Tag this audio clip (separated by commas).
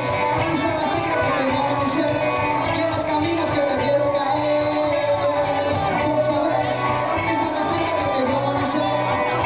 inside a large room or hall, Music